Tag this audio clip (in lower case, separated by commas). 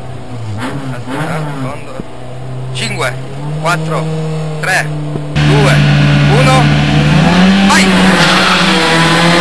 speech, vehicle, car